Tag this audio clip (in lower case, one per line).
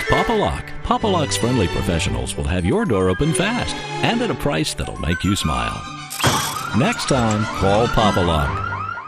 music
speech